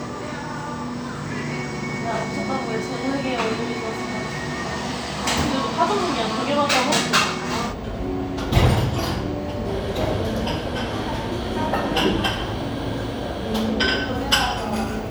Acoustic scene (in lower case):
cafe